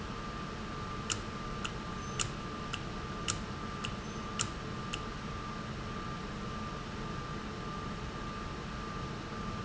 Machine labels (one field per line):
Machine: valve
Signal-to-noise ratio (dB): -6 dB